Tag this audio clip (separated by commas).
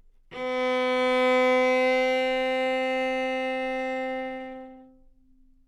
Bowed string instrument, Musical instrument, Music